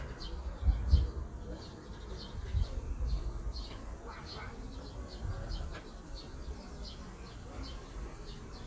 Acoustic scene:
park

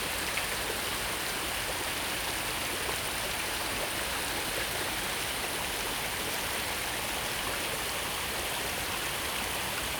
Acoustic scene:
park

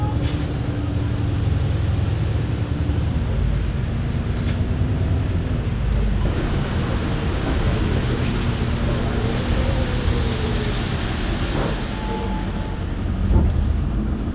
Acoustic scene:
bus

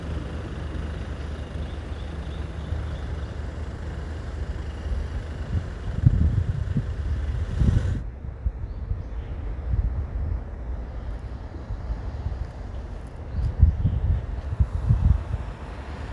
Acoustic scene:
street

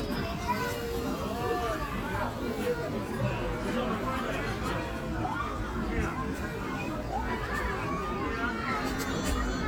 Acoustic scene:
park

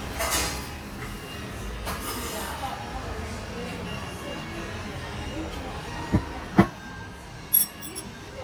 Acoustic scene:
restaurant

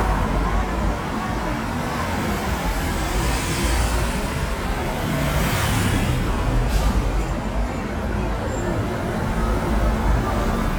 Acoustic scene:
street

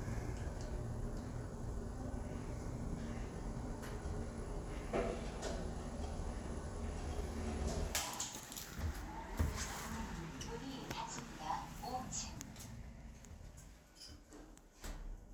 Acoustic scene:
elevator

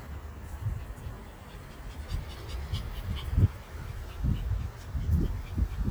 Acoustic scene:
residential area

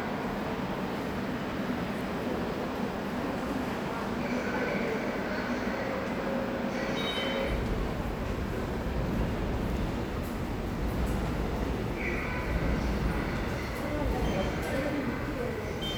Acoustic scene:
subway station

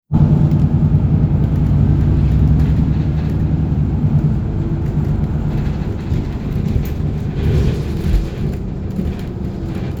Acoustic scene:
bus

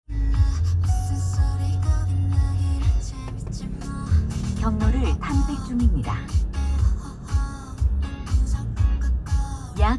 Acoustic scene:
car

